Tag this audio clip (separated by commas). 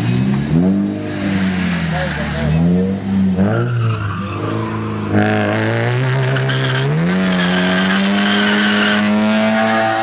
Speech